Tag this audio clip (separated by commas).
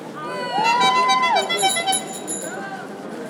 Shout, Vehicle, Human voice, Bicycle